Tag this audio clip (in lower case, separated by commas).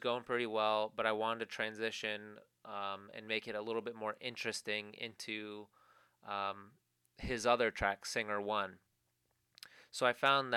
speech